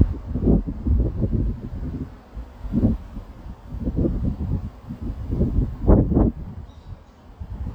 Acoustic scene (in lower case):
residential area